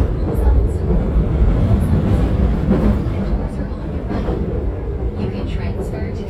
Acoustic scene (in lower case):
subway train